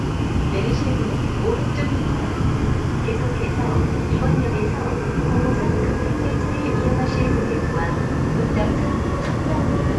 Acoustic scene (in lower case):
subway train